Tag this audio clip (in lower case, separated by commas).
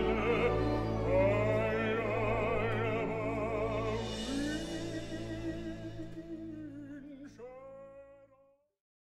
music